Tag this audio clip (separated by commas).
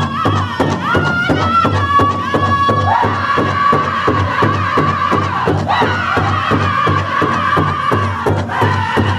Music